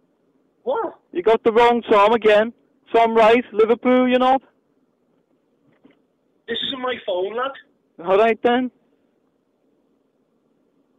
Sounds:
speech

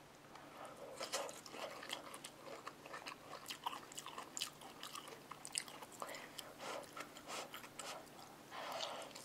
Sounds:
chewing, inside a small room

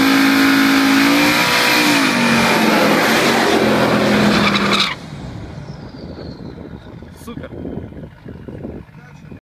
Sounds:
speech, skidding, car, vehicle, motor vehicle (road)

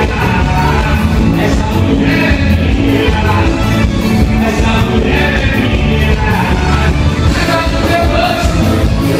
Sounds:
music

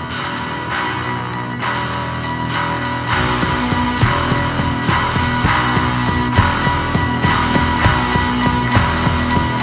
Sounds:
music

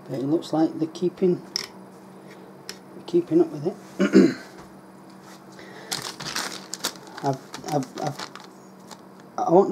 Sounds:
inside a small room, speech

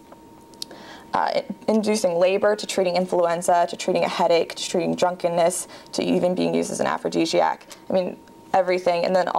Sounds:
inside a large room or hall, speech

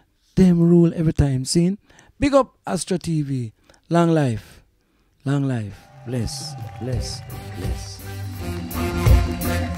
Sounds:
music, speech

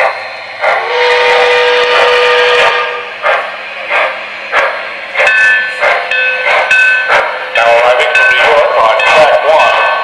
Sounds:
speech, vehicle, engine

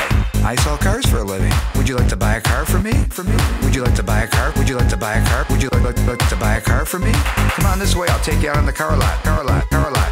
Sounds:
music, speech

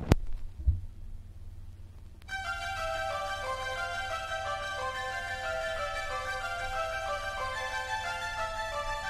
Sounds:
music, theme music

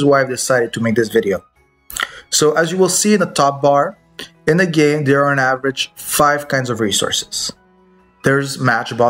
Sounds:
speech

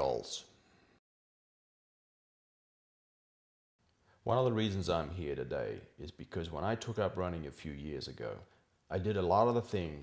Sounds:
inside a small room, speech

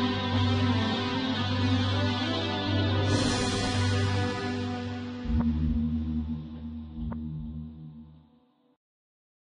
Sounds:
music

